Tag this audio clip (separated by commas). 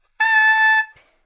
Musical instrument, Music, woodwind instrument